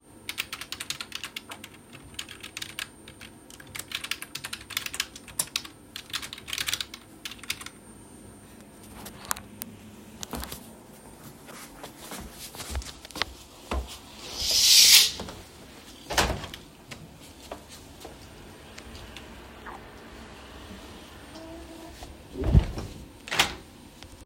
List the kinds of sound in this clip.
keyboard typing, footsteps, window